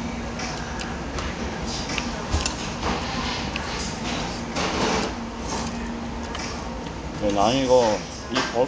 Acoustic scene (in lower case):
restaurant